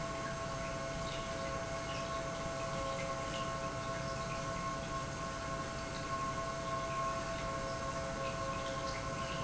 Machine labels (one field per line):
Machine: pump